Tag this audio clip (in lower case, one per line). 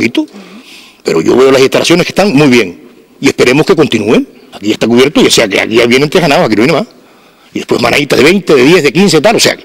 monologue
speech